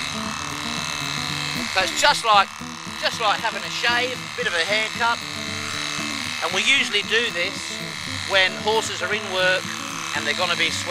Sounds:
Speech, Music

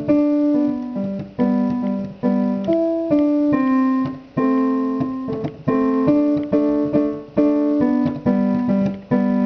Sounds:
Keyboard (musical), Piano

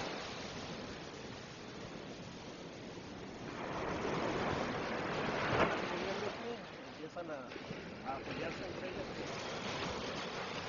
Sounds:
Wind noise (microphone), Wind, Waves, Ocean

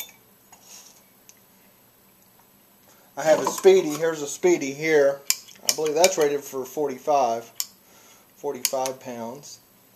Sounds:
Speech

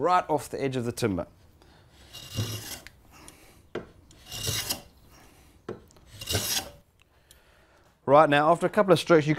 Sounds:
Wood, Rub, Filing (rasp)

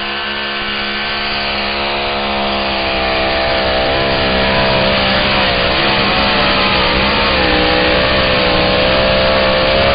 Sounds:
Vehicle, Truck

